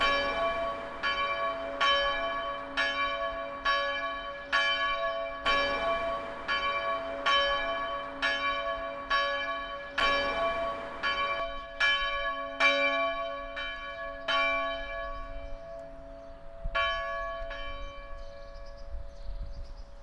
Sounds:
church bell, bell

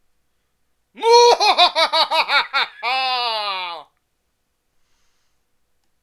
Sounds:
human voice, laughter

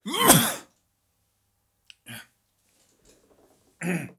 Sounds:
sneeze, respiratory sounds

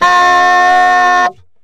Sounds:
woodwind instrument, musical instrument, music

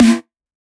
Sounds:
snare drum, drum, percussion, musical instrument, music

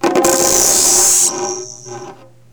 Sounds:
percussion, music, musical instrument

